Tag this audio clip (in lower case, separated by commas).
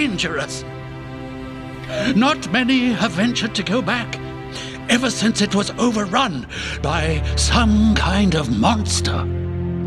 music, speech